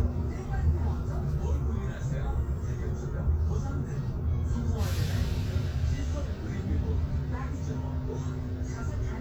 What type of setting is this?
bus